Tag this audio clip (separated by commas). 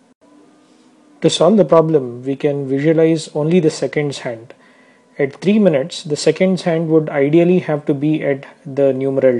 Speech